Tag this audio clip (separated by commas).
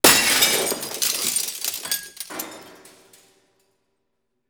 Shatter, Glass